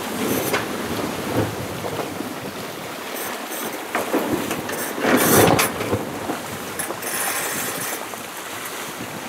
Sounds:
sailing, Sailboat, Ocean, Boat

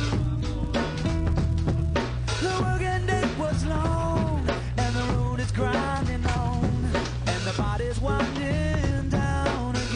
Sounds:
Music

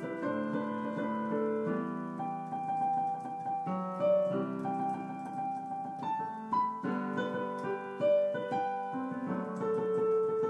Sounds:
Music, New-age music

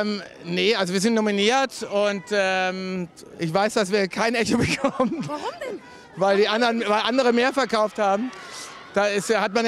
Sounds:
Speech

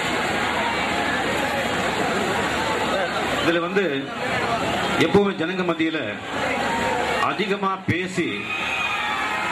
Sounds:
Speech, monologue, Male speech

